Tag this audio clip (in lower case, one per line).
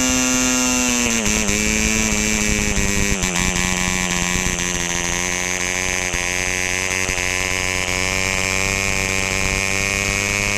engine